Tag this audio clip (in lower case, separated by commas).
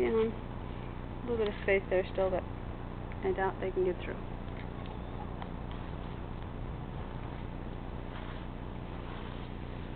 speech